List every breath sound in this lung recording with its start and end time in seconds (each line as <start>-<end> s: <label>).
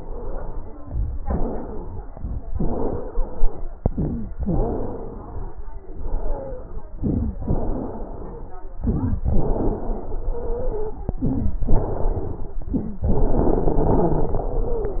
0.00-0.69 s: exhalation
0.00-0.69 s: wheeze
0.80-1.18 s: inhalation
0.80-1.18 s: crackles
1.22-2.02 s: exhalation
1.22-2.02 s: wheeze
2.05-2.44 s: inhalation
2.05-2.44 s: crackles
2.54-3.65 s: exhalation
2.54-3.65 s: wheeze
3.90-4.28 s: inhalation
3.90-4.28 s: wheeze
4.39-5.60 s: exhalation
4.39-5.60 s: wheeze
5.91-6.95 s: exhalation
5.91-6.95 s: wheeze
7.03-7.42 s: inhalation
7.03-7.42 s: wheeze
7.47-8.57 s: exhalation
7.47-8.57 s: wheeze
8.84-9.22 s: inhalation
8.84-9.22 s: wheeze
9.31-11.10 s: exhalation
9.31-11.10 s: wheeze
11.25-11.64 s: inhalation
11.71-12.60 s: exhalation
11.71-12.60 s: wheeze
12.66-13.04 s: wheeze
12.68-13.06 s: inhalation
13.05-15.00 s: exhalation
13.05-15.00 s: wheeze